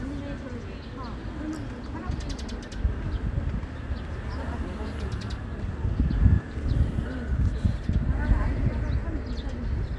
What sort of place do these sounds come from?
park